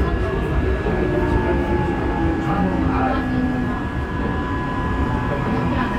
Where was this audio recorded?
on a subway train